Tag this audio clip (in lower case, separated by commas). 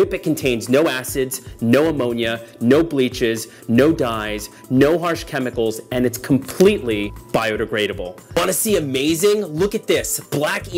music, speech